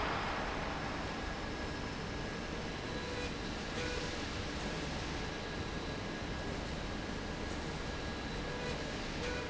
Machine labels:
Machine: slide rail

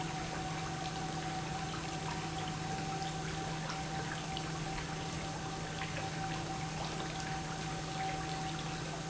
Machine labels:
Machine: pump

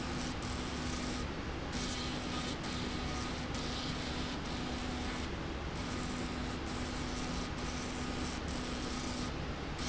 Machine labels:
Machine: slide rail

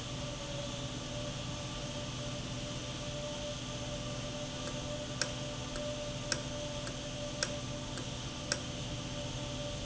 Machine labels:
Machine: valve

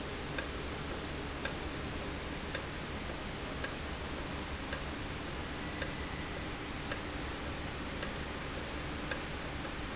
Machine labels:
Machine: valve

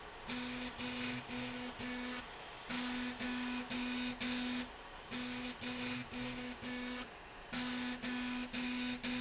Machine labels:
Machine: slide rail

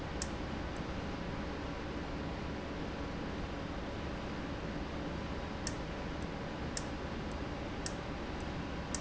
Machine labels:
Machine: valve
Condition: abnormal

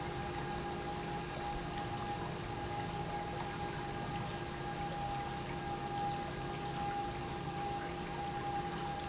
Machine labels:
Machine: pump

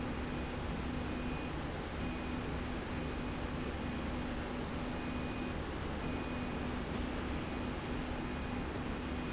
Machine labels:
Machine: slide rail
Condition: normal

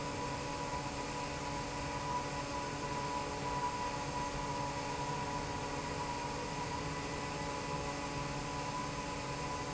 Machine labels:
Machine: fan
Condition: normal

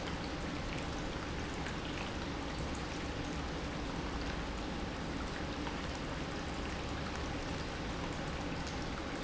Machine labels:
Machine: pump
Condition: normal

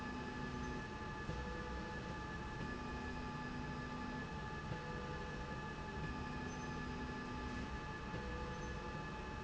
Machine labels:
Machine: slide rail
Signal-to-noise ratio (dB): 0 dB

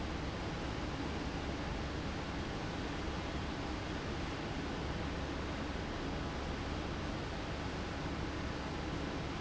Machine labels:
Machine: fan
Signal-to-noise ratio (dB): -6 dB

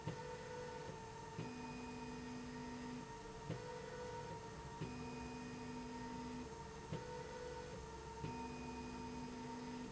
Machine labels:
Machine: slide rail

